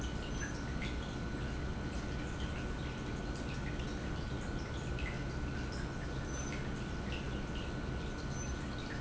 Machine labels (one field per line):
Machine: pump